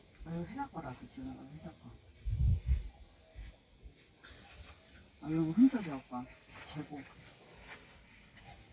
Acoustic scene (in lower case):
park